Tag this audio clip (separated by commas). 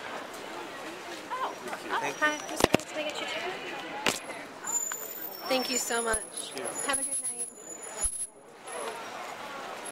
Speech